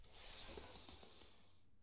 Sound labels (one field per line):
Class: furniture moving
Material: wooden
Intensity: low